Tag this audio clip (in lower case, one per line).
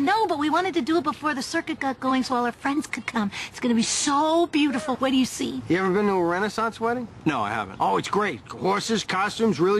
outside, urban or man-made
speech